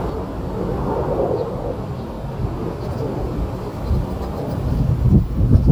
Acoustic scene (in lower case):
park